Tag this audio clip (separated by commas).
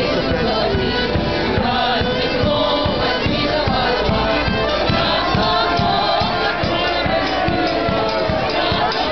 Music